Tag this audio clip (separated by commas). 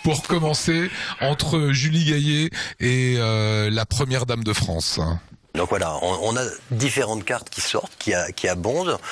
Speech